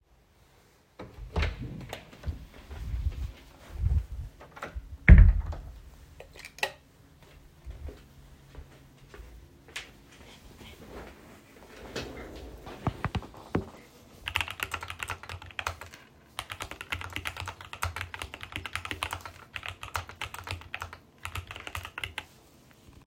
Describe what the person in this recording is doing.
I opened the door, walked into the office, and closed the door. I turned on the light switch, walked to the desk chair, sat down, and started typing on the keyboard.